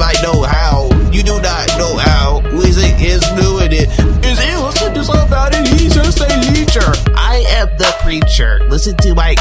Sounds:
music

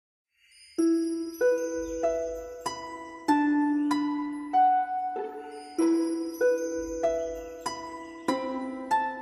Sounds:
music

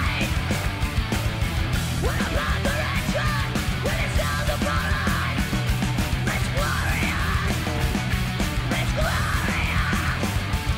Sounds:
music

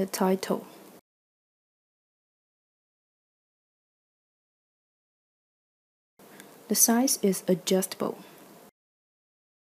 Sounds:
speech

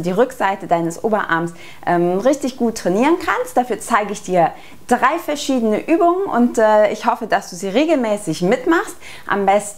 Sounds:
speech

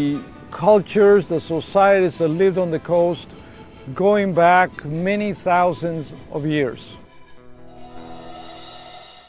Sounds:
speech, music

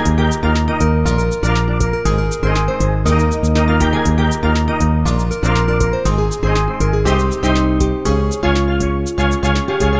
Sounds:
steelpan, music

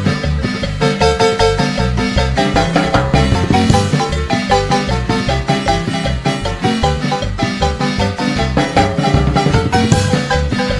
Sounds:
music of latin america, music

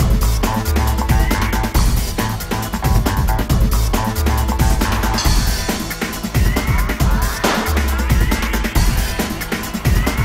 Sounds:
music

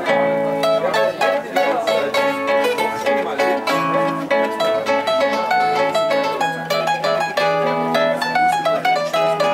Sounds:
zither, pizzicato

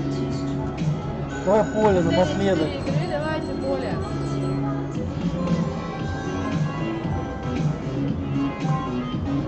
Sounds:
slot machine

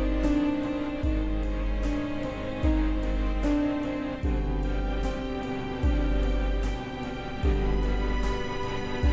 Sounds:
music

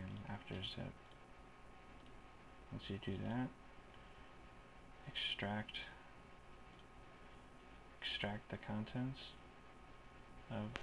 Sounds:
speech

